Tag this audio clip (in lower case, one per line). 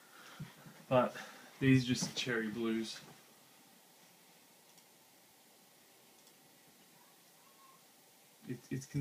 speech
clicking
computer keyboard
inside a small room